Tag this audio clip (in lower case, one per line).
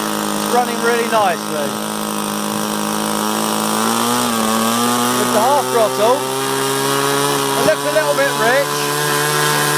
engine
aircraft
speech